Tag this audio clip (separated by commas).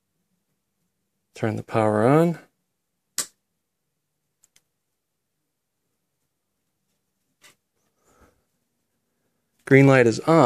Silence, inside a small room, Speech